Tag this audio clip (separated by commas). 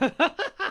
Laughter, Human voice